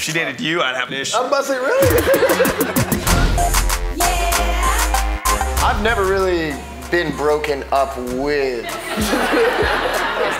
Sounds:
Music, Speech

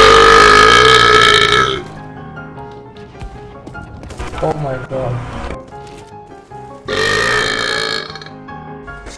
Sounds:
people burping

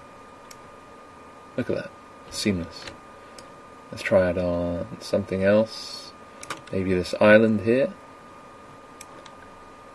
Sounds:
Speech

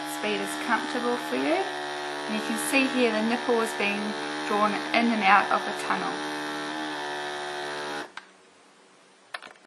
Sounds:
Speech

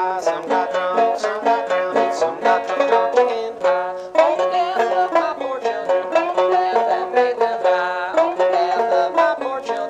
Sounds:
Musical instrument, playing banjo, Plucked string instrument, Music, Banjo

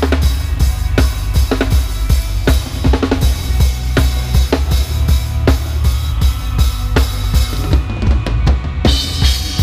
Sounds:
Music

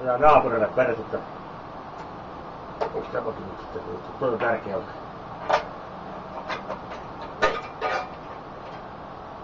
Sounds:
Speech, Engine

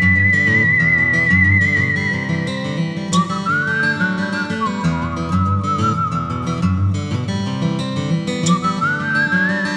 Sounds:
Music

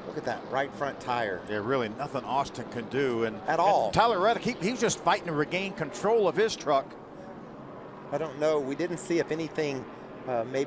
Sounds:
Vehicle, Speech

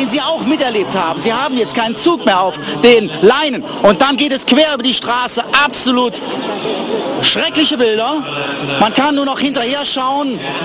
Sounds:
Speech

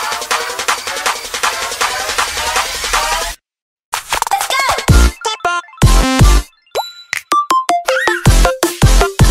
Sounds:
Music

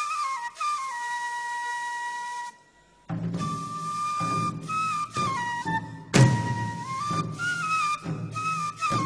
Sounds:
Whistle

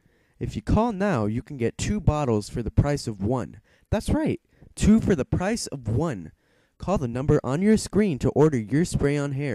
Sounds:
Speech

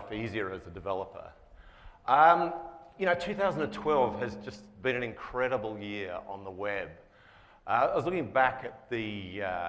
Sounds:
Speech

